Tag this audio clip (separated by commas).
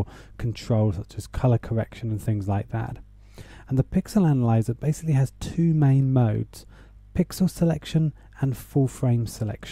Speech